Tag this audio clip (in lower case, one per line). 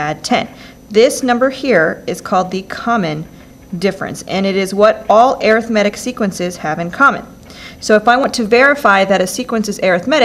speech